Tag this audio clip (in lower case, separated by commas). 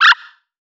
animal